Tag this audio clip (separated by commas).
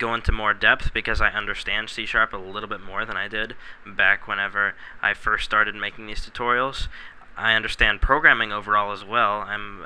Speech